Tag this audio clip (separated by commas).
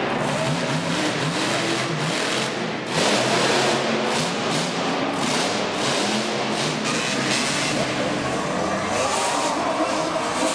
Vehicle, Truck